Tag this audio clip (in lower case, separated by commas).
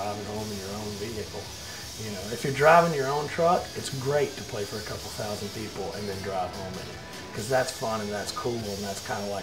music, speech